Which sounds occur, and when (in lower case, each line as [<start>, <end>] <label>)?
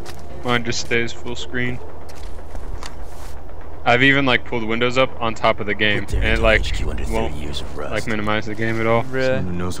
[0.00, 0.20] footsteps
[0.01, 9.80] video game sound
[0.32, 1.74] male speech
[1.56, 1.78] footsteps
[2.00, 2.25] footsteps
[2.44, 2.82] footsteps
[3.05, 3.35] footsteps
[3.84, 7.58] male speech
[6.07, 7.80] speech synthesizer
[7.76, 9.37] male speech
[9.55, 9.80] male speech